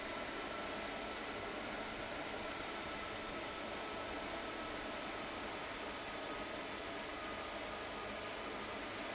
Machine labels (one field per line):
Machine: fan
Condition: abnormal